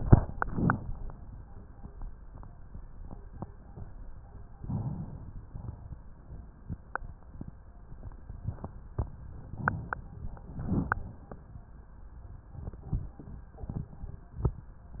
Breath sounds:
Inhalation: 4.59-5.49 s, 9.47-10.46 s
Exhalation: 5.49-6.07 s, 10.46-11.31 s

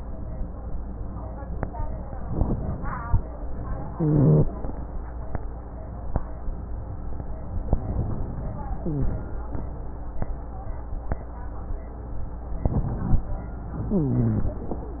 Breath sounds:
Inhalation: 2.35-3.06 s, 12.66-13.19 s
Exhalation: 3.97-4.50 s, 13.87-14.63 s
Rhonchi: 3.97-4.50 s, 8.77-9.20 s, 13.87-14.63 s

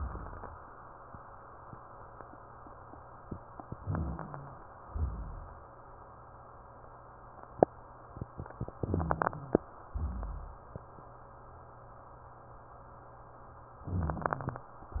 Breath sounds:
Inhalation: 3.79-4.61 s, 8.82-9.64 s, 13.85-14.67 s
Exhalation: 0.00-0.65 s, 4.84-5.66 s, 9.88-10.70 s
Rhonchi: 0.00-0.65 s, 3.79-4.61 s, 4.84-5.66 s, 8.82-9.64 s, 9.88-10.70 s, 13.85-14.67 s

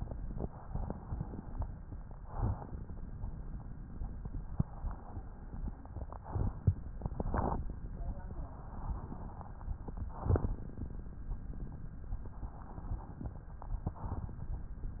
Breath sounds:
Inhalation: 2.08-3.73 s, 5.95-6.97 s, 9.85-11.07 s, 13.66-14.63 s
Exhalation: 0.14-1.73 s, 3.77-5.83 s, 6.97-9.72 s, 11.93-13.66 s

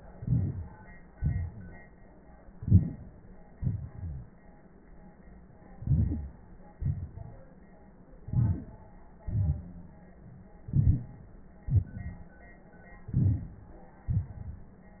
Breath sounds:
Inhalation: 0.17-0.89 s, 2.54-3.21 s, 5.77-6.51 s, 8.23-8.84 s, 10.72-11.33 s, 13.07-13.68 s
Exhalation: 1.14-1.86 s, 3.61-4.27 s, 6.77-7.51 s, 9.26-9.87 s, 11.69-12.30 s, 14.10-14.71 s
Rhonchi: 4.00-4.27 s
Crackles: 0.17-0.89 s, 6.77-7.51 s, 8.23-8.84 s

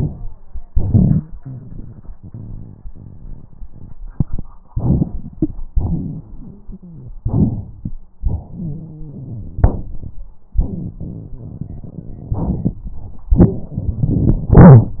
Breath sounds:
Inhalation: 4.73-5.61 s, 7.23-7.91 s, 12.34-13.23 s
Exhalation: 0.82-1.41 s, 5.73-6.81 s, 8.20-10.18 s
Wheeze: 6.47-7.15 s
Rhonchi: 0.74-1.21 s, 7.23-7.91 s, 8.49-9.62 s
Crackles: 12.34-13.23 s

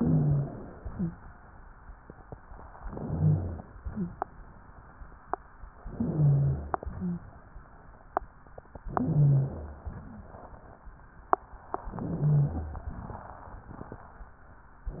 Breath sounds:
Inhalation: 0.00-0.86 s, 2.81-3.66 s, 5.86-6.85 s, 8.86-9.91 s, 11.93-12.88 s
Wheeze: 0.00-0.48 s, 0.89-1.22 s, 3.00-3.63 s, 3.91-4.12 s, 5.98-6.81 s, 6.94-7.27 s, 9.05-9.89 s, 12.05-12.88 s

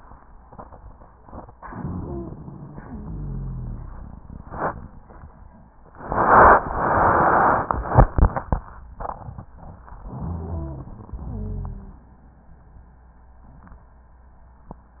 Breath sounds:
Inhalation: 1.63-2.71 s, 10.06-11.12 s
Exhalation: 2.71-4.02 s, 11.18-12.11 s
Wheeze: 1.83-2.39 s, 2.71-4.02 s, 10.32-10.96 s, 11.18-12.07 s

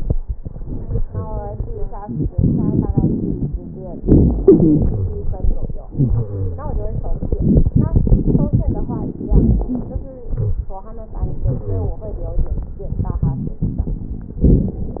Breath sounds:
Inhalation: 2.03-3.53 s, 7.21-9.15 s
Exhalation: 3.97-5.74 s, 9.23-10.18 s, 14.45-15.00 s
Wheeze: 3.97-5.54 s, 5.89-7.19 s, 10.29-10.77 s, 11.50-11.99 s
Crackles: 2.03-3.53 s, 7.21-9.15 s, 9.23-10.18 s, 14.45-15.00 s

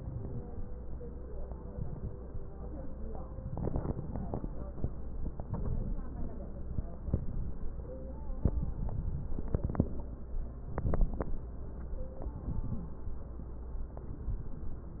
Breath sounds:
Inhalation: 0.00-0.66 s, 1.69-2.35 s, 3.38-4.44 s, 5.32-6.04 s, 7.03-7.75 s, 8.49-9.35 s, 10.70-11.47 s, 12.33-12.88 s, 14.06-14.84 s
Crackles: 0.00-0.66 s, 1.69-2.35 s, 3.38-4.44 s, 5.32-6.04 s, 7.03-7.75 s, 8.49-9.35 s, 10.70-11.47 s, 12.33-12.88 s, 14.06-14.84 s

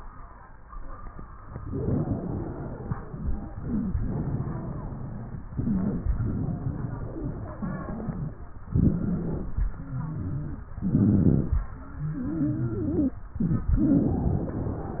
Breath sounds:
Inhalation: 3.52-3.98 s, 5.55-6.09 s, 8.72-9.68 s, 10.78-11.61 s, 13.37-13.72 s
Exhalation: 1.60-3.46 s, 3.98-5.47 s, 6.15-8.44 s, 9.72-10.70 s, 11.75-13.20 s, 13.79-15.00 s
Wheeze: 1.60-3.46 s, 3.53-3.96 s, 3.98-5.47 s, 5.55-6.09 s, 6.15-8.44 s, 8.72-9.68 s, 9.72-10.70 s, 10.78-11.61 s, 11.75-13.20 s, 13.37-13.72 s, 13.79-15.00 s

